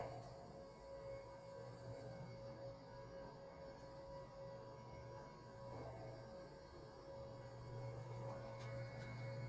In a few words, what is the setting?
elevator